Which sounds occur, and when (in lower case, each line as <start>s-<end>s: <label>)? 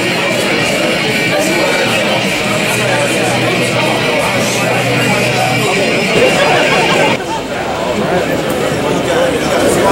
0.0s-7.2s: music
0.0s-9.9s: speech noise